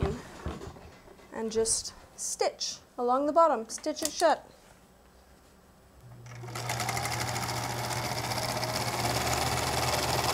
A woman speaks followed by the humming of a sewing machine